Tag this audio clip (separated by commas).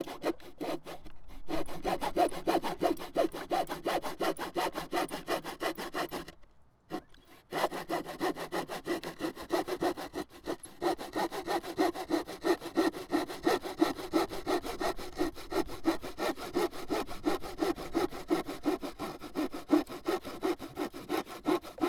Sawing, Tools